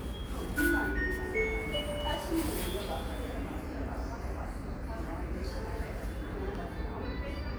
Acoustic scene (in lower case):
subway station